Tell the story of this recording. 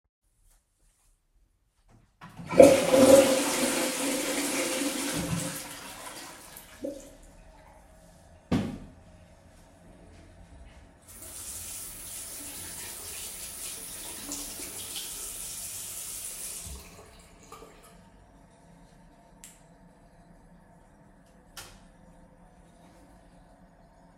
I flushed the toilet, washed my hands and turned of the light as I walked out.